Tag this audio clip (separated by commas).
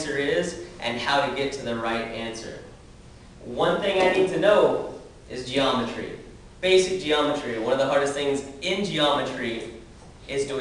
Speech, man speaking